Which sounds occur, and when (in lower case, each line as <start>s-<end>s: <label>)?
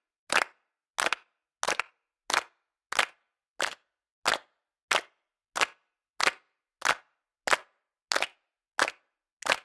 0.3s-0.5s: clapping
0.9s-1.3s: clapping
1.6s-1.9s: clapping
2.3s-2.5s: clapping
2.9s-3.1s: clapping
3.5s-3.8s: clapping
4.2s-4.4s: clapping
4.9s-5.0s: clapping
5.5s-5.7s: clapping
6.2s-6.3s: clapping
6.8s-7.0s: clapping
7.4s-7.6s: clapping
8.1s-8.3s: clapping
8.7s-9.0s: clapping
9.4s-9.6s: clapping